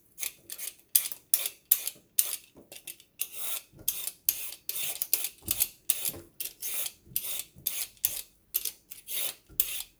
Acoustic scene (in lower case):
kitchen